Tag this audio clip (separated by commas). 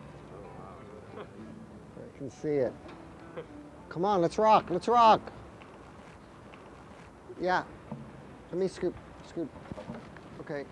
Music, Speech